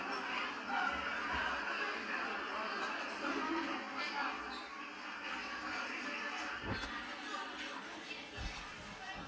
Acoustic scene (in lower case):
restaurant